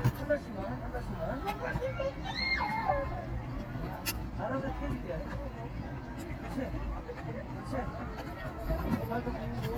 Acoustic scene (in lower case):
park